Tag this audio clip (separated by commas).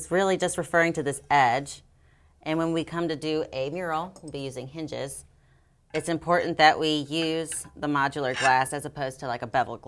Speech